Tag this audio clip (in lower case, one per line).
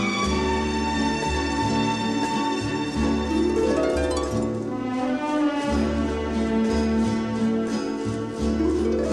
new-age music
music